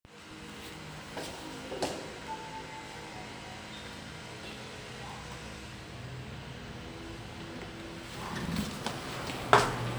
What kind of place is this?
elevator